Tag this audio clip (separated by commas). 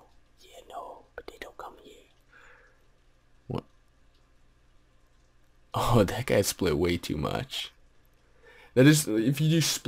Whispering